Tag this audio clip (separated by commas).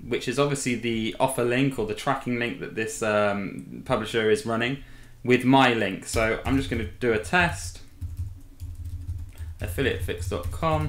Speech, Computer keyboard